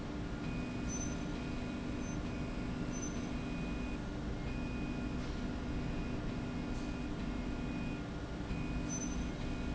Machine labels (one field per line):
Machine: slide rail